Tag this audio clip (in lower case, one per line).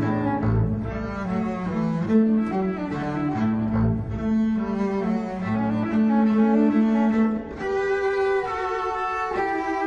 music
musical instrument
cello